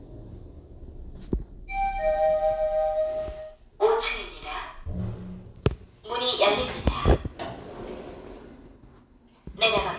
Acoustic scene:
elevator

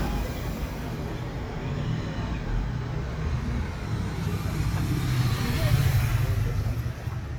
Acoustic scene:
residential area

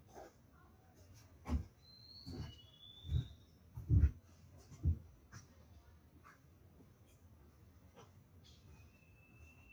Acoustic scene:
park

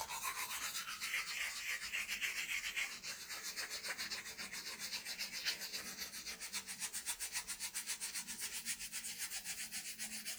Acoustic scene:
restroom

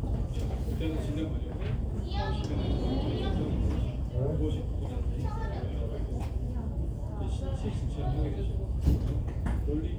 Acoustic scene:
crowded indoor space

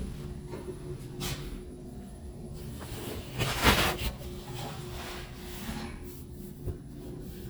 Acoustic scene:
elevator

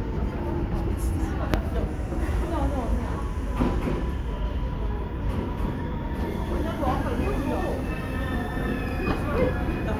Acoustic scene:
subway station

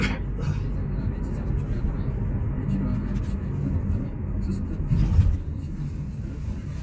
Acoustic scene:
car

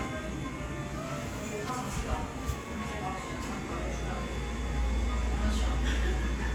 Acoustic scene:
cafe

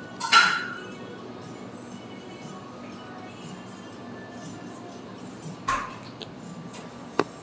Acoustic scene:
cafe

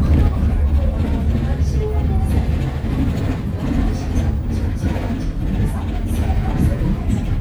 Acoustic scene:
bus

